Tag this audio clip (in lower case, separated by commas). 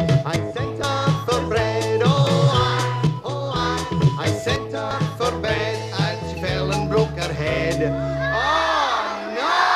speech, male singing, music